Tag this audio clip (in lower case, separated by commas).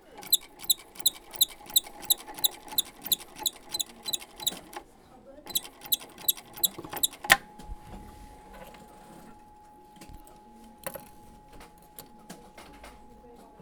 mechanisms